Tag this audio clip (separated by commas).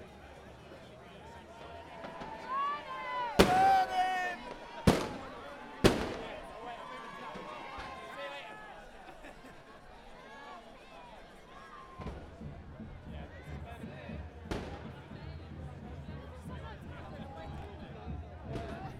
Crowd, Explosion, Human group actions, Fireworks